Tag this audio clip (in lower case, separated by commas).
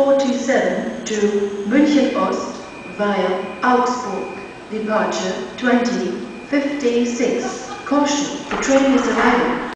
speech